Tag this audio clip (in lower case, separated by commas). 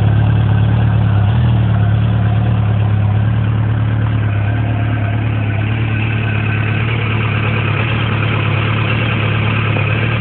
medium engine (mid frequency), vehicle